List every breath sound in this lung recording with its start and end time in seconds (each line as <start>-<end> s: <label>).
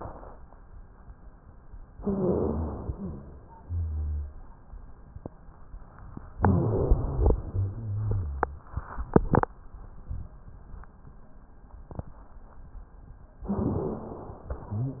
1.92-2.92 s: inhalation
1.92-2.92 s: wheeze
2.98-3.48 s: wheeze
2.98-4.36 s: exhalation
3.58-4.36 s: rhonchi
6.36-7.48 s: inhalation
6.36-7.48 s: wheeze
7.48-8.68 s: exhalation
7.48-8.68 s: rhonchi
13.44-14.54 s: inhalation
13.44-14.54 s: wheeze